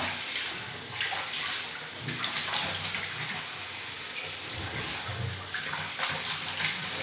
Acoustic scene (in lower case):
restroom